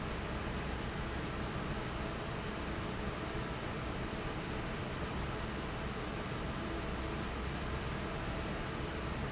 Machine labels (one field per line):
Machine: fan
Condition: normal